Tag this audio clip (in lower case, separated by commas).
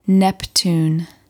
speech, female speech, human voice